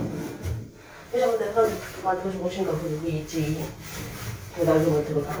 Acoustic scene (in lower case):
elevator